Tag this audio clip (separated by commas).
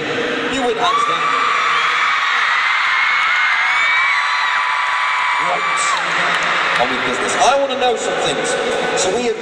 Speech